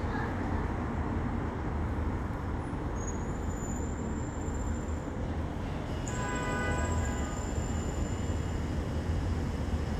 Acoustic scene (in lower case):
residential area